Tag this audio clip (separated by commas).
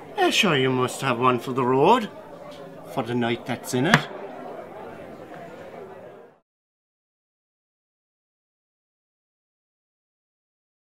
Speech